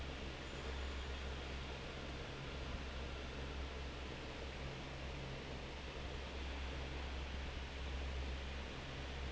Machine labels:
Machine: fan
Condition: normal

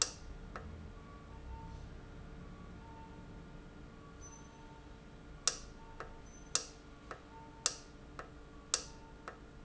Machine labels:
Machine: valve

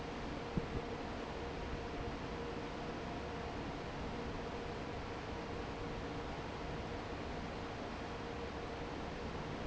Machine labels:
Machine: fan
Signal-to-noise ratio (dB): 0 dB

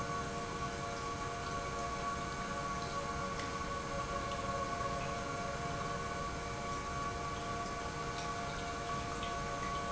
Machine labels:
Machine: pump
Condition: normal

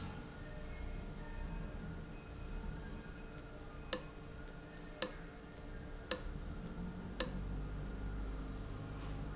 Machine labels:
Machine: valve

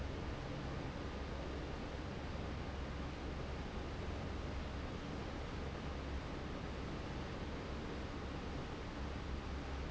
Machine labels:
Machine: fan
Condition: normal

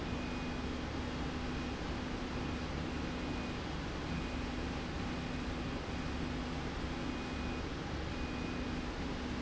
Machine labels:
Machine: slide rail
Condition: normal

